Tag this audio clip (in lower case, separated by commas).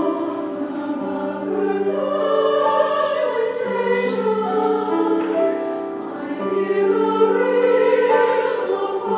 choir, female singing, music